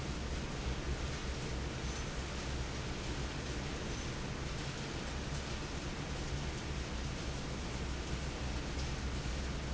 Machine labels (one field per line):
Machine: fan